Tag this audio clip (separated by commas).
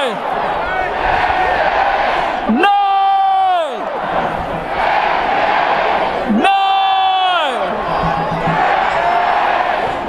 Speech